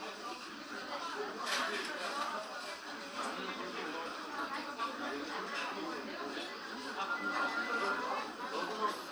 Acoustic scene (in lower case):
restaurant